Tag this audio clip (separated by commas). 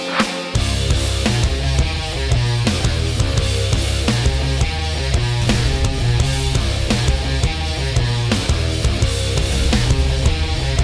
Music